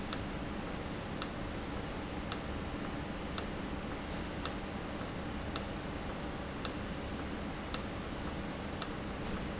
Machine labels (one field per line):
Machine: valve